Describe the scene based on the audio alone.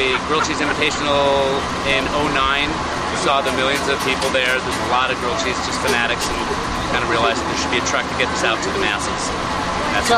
A man speaks as an engine idles